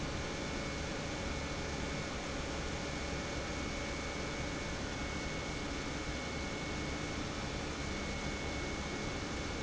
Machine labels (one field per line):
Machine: pump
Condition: normal